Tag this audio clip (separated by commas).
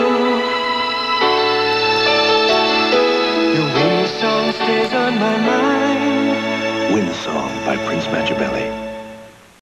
Music, Speech